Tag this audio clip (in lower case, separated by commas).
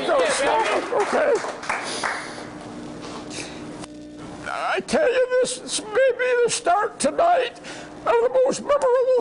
monologue, speech, man speaking